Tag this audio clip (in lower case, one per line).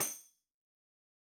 percussion
music
musical instrument
tambourine